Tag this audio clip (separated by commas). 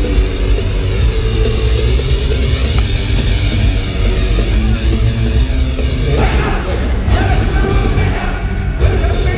Music